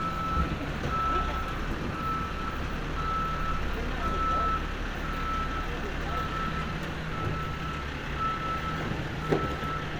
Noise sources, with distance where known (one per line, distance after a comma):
large-sounding engine, near
reverse beeper, near